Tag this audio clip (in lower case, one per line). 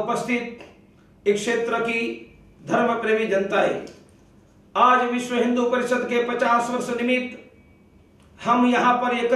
speech
narration
man speaking